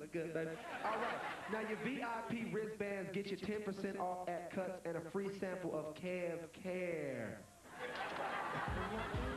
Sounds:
speech, music

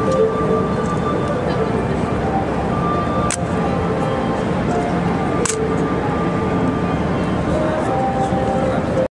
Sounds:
music, speech

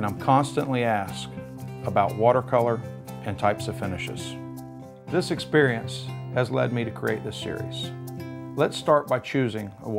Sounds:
speech, music

